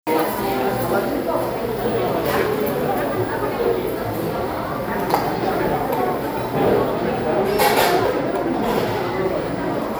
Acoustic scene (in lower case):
cafe